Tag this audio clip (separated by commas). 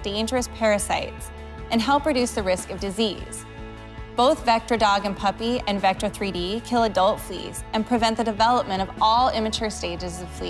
Music, Speech